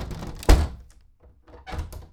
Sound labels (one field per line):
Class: door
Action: closing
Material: wooden